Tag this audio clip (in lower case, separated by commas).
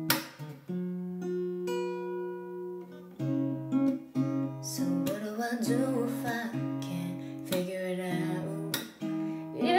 singing, music, strum